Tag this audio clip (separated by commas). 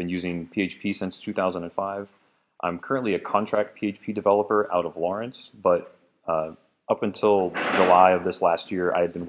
Speech